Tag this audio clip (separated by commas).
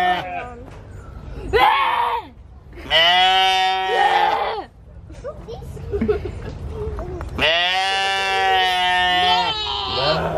sheep bleating